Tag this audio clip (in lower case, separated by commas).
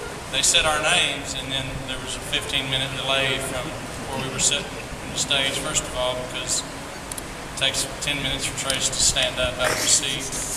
speech